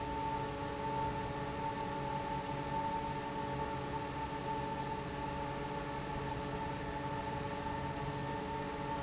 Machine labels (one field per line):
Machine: fan